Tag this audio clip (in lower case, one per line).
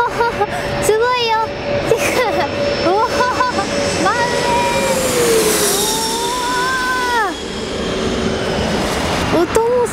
airplane